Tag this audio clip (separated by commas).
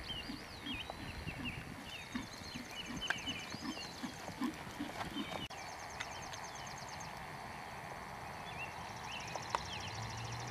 horse clip-clop, Clip-clop